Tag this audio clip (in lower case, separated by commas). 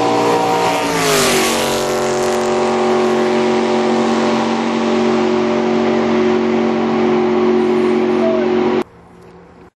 motorboat, water vehicle